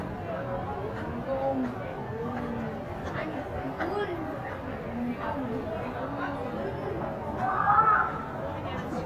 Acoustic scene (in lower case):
crowded indoor space